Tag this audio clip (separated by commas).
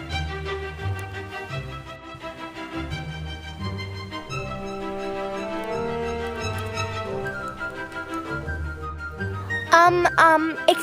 Speech, Music